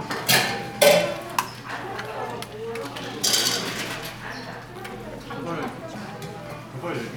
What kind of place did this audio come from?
crowded indoor space